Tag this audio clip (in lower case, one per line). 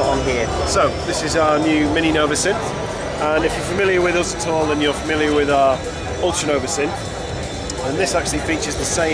speech
music
sampler